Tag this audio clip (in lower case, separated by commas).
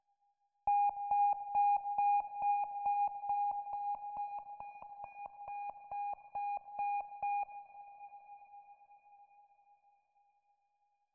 alarm